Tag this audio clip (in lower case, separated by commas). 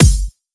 musical instrument, keyboard (musical), music, percussion, drum, bass drum